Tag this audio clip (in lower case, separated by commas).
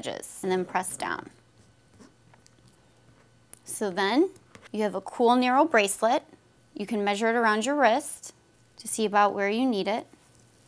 speech